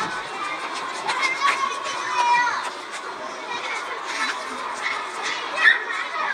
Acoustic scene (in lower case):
park